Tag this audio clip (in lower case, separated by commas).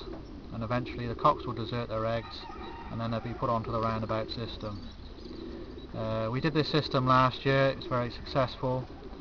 outside, rural or natural, pigeon, bird, speech